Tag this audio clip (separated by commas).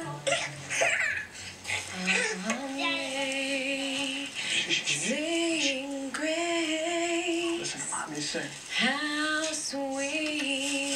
Singing